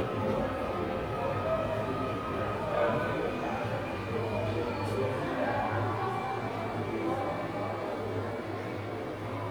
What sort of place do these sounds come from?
subway station